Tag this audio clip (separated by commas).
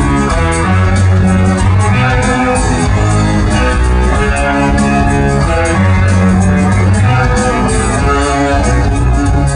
Music